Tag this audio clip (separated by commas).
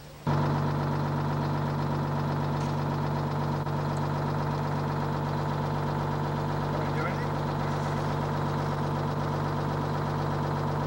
Speech